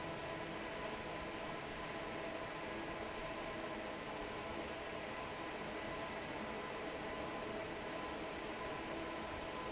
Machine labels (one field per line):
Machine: fan